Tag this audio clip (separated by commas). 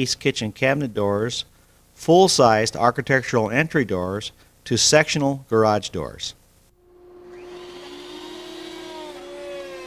Speech